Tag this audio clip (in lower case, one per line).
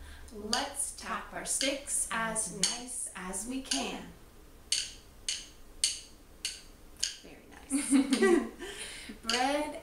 speech